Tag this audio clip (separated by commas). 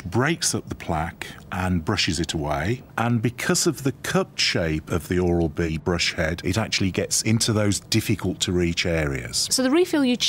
Speech